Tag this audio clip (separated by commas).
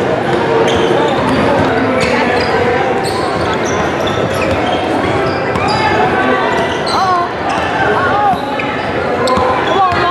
basketball bounce